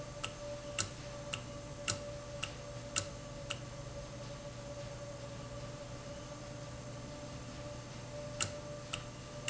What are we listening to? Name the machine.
valve